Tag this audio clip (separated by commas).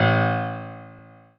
Keyboard (musical), Music, Musical instrument, Piano